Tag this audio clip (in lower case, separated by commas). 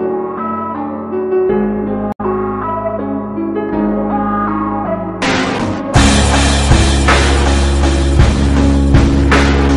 music